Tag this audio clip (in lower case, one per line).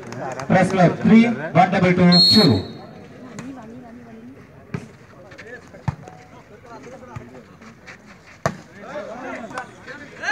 playing volleyball